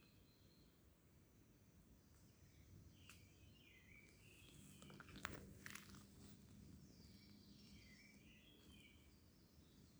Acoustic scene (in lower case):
park